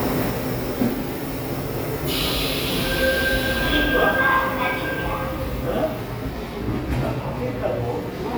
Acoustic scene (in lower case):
subway station